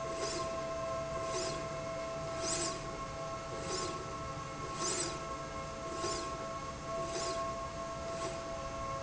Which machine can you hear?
slide rail